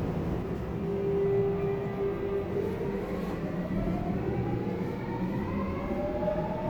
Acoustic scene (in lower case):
subway train